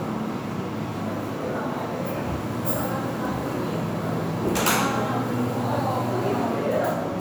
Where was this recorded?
in a crowded indoor space